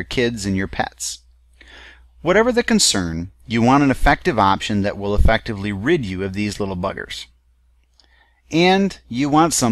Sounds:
Speech

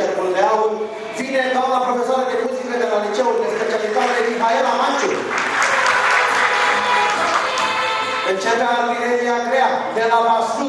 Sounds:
Speech, man speaking, Music

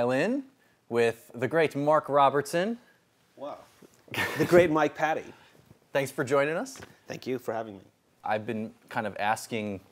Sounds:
Speech

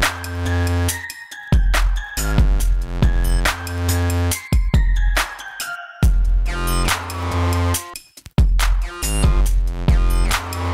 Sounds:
Music

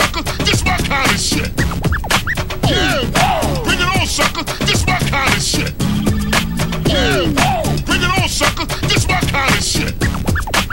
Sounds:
Music

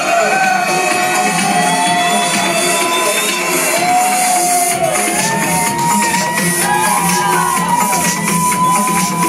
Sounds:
Electronica, Music

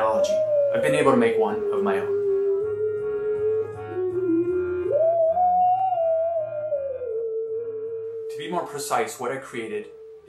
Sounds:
playing theremin

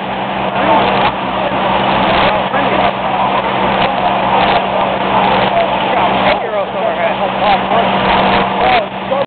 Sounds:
Speech

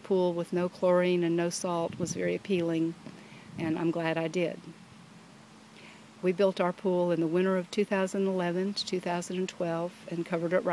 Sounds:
Speech

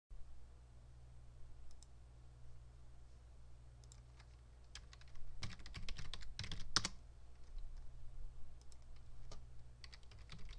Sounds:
Computer keyboard

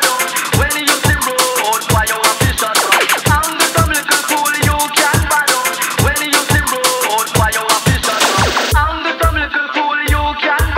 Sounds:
Electronic music, Music, Drum and bass

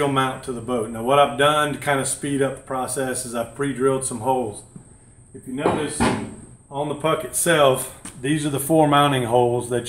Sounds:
Speech

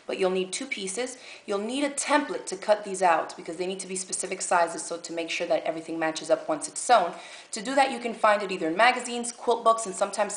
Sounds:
Speech

